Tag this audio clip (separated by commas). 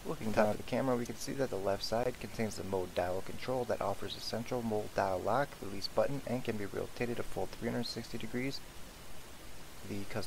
Speech